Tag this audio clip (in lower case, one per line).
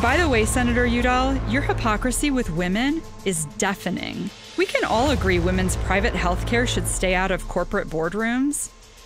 music
speech